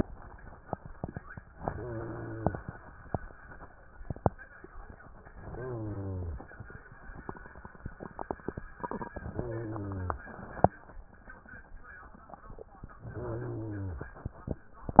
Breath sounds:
Inhalation: 1.50-2.54 s, 5.45-6.49 s, 9.28-10.32 s, 13.09-14.14 s
Rhonchi: 1.50-2.54 s, 5.45-6.49 s, 9.28-10.32 s, 13.09-14.14 s

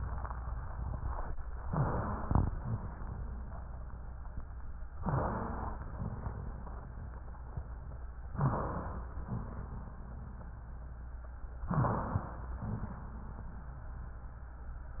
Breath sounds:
Inhalation: 1.64-2.49 s, 5.04-5.89 s, 8.34-9.19 s, 11.69-12.54 s
Exhalation: 2.51-3.02 s, 5.97-6.48 s, 9.24-9.96 s, 12.62-13.34 s
Wheeze: 1.64-2.49 s, 2.51-3.02 s, 5.04-5.89 s, 5.97-6.48 s, 8.34-9.19 s, 9.24-9.96 s, 11.69-12.54 s, 12.62-13.34 s

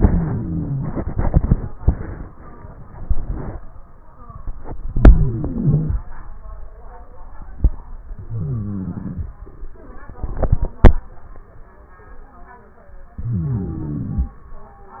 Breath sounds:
Inhalation: 0.00-0.92 s, 4.99-5.92 s, 8.24-9.27 s, 13.18-14.37 s
Wheeze: 0.00-0.92 s, 4.99-5.92 s, 8.24-9.27 s, 13.18-14.37 s

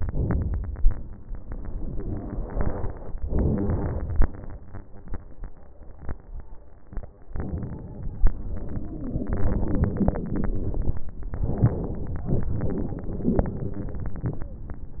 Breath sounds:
Inhalation: 0.00-0.89 s, 3.27-4.27 s, 7.35-8.29 s, 11.36-12.31 s
Exhalation: 0.99-3.15 s, 8.31-11.02 s, 12.34-15.00 s
Wheeze: 8.76-10.42 s
Crackles: 0.00-0.89 s, 0.99-3.15 s, 3.26-4.24 s, 12.34-14.49 s

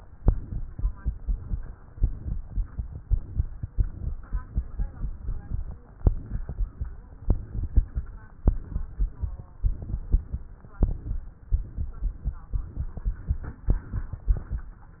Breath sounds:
Inhalation: 1.94-3.42 s, 4.53-5.77 s, 7.14-8.13 s, 9.52-10.50 s, 11.47-12.44 s, 13.69-14.74 s
Exhalation: 0.20-1.68 s, 3.68-4.45 s, 5.96-6.94 s, 8.41-9.39 s, 10.66-11.45 s, 12.48-13.65 s

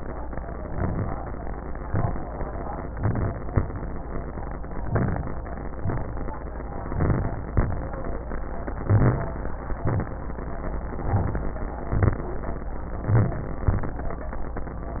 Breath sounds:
Inhalation: 0.49-1.18 s, 2.90-3.49 s, 4.86-5.45 s, 6.93-7.51 s, 8.82-9.39 s, 11.02-11.59 s, 13.04-13.70 s
Exhalation: 1.86-2.45 s, 5.77-6.36 s, 7.53-8.12 s, 9.81-10.21 s, 11.84-12.28 s

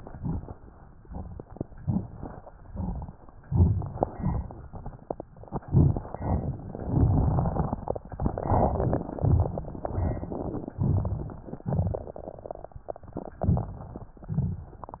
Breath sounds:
Inhalation: 1.76-2.41 s, 3.40-4.04 s, 5.64-6.11 s, 6.77-8.03 s, 9.18-9.81 s, 10.76-11.59 s, 11.69-12.33 s, 13.40-14.14 s
Exhalation: 0.08-0.55 s, 2.54-3.19 s, 4.17-4.69 s, 6.17-6.64 s, 8.22-9.17 s, 9.87-10.70 s, 11.69-12.33 s, 14.23-14.97 s
Crackles: 0.08-0.55 s, 1.76-2.41 s, 2.54-3.19 s, 3.40-4.04 s, 4.17-4.69 s, 5.64-6.11 s, 6.17-6.64 s, 6.77-8.03 s, 8.22-9.17 s, 9.18-9.81 s, 9.85-10.80 s, 10.81-11.59 s, 11.69-12.33 s, 13.40-14.14 s, 14.23-14.97 s

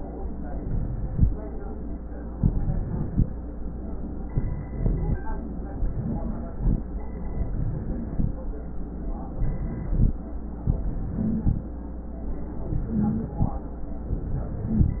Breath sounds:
Inhalation: 0.53-1.24 s, 2.37-3.25 s, 4.31-5.18 s, 5.88-6.76 s, 7.44-8.31 s, 9.32-10.19 s, 10.70-11.57 s, 12.68-13.55 s, 14.19-14.97 s
Wheeze: 5.98-6.55 s, 11.14-11.61 s, 12.92-13.40 s, 14.67-14.97 s
Rhonchi: 4.71-5.18 s

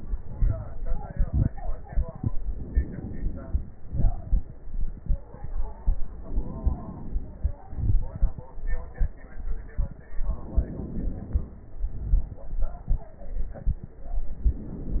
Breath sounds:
Inhalation: 2.35-3.77 s, 6.22-7.64 s, 10.19-11.61 s, 14.43-15.00 s
Exhalation: 3.79-4.64 s, 7.62-8.47 s, 11.61-12.47 s
Crackles: 3.79-4.64 s, 7.62-8.47 s, 11.61-12.47 s

